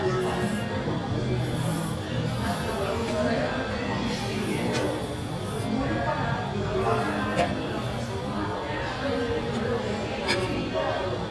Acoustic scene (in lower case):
cafe